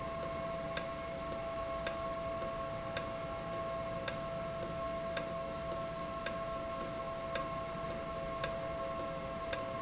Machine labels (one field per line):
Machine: valve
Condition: normal